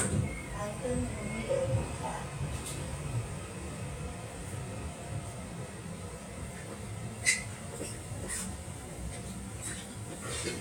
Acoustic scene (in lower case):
subway train